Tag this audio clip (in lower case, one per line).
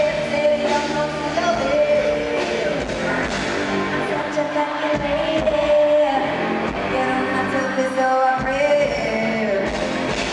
music